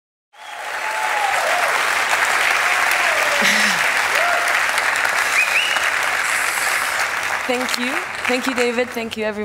A female laughs as a large crowd gives applause